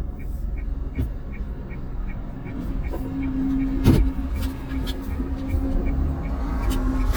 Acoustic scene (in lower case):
car